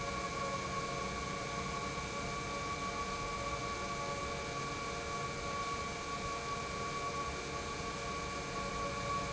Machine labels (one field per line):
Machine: pump